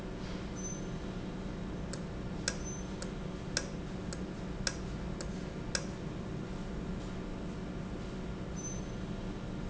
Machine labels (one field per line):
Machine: valve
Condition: normal